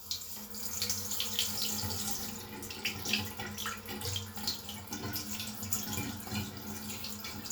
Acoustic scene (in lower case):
restroom